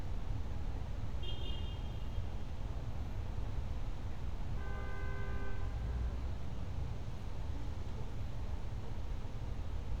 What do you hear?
car horn